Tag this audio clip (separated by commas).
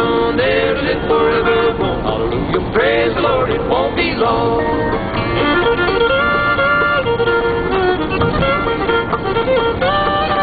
Bluegrass, Music